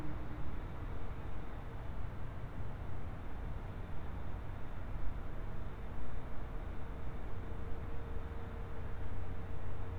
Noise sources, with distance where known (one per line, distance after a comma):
background noise